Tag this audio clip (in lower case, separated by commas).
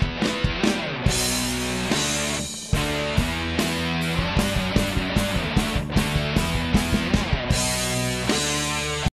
electric guitar, guitar, plucked string instrument, musical instrument, music